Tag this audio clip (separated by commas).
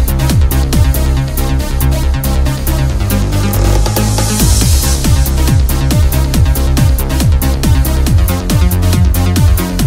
Electronic music, Music